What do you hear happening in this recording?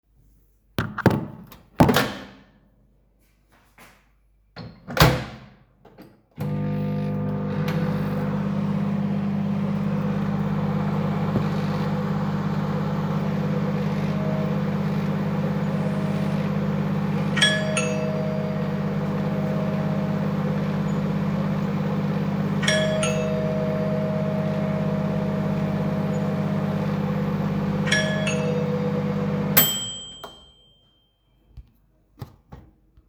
The doorbell rang while I was using our microwave.